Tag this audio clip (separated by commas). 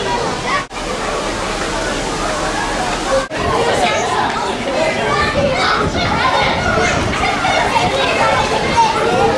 sloshing water